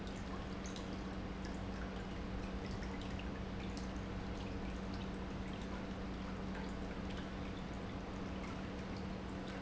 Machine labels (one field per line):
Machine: pump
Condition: normal